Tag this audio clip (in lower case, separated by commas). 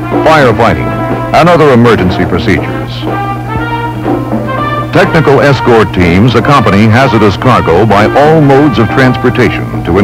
speech, music